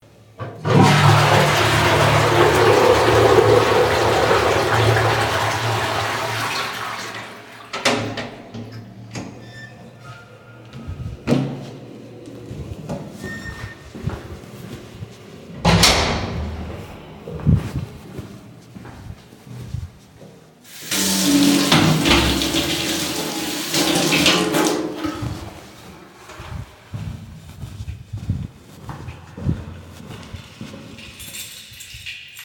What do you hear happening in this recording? I flush the toilet. Open two doors and walk to the sink. I wash my hands and continue walking towards my room. I get out my keys.